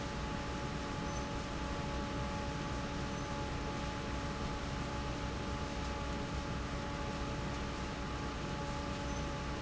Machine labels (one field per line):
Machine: fan